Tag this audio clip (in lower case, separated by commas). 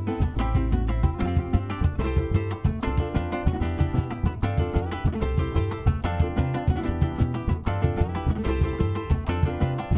music